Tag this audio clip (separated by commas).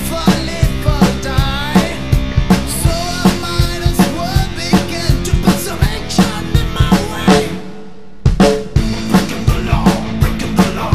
Music